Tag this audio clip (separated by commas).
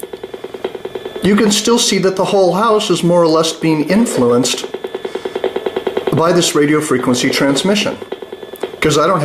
inside a small room, Speech